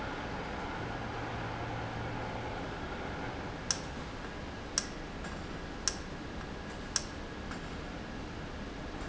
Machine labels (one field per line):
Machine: valve